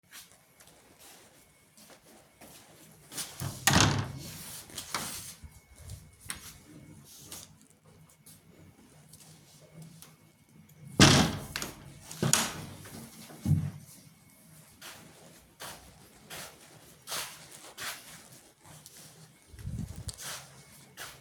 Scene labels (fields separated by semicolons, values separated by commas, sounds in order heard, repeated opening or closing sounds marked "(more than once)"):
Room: living room; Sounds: footsteps, door (more than once)